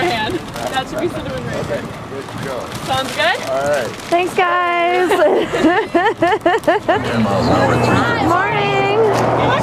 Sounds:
Speech

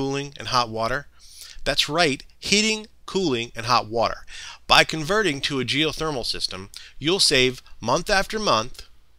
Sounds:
Speech

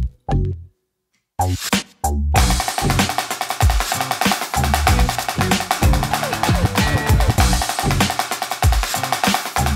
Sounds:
playing snare drum

